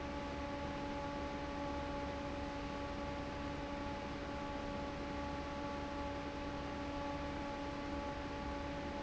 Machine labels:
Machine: fan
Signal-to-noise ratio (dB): 0 dB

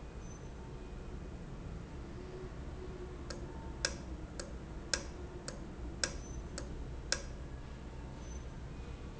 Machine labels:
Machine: valve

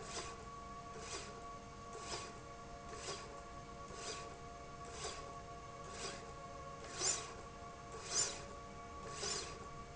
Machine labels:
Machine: slide rail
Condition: normal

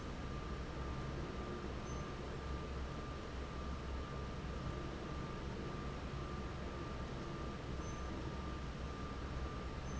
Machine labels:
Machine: fan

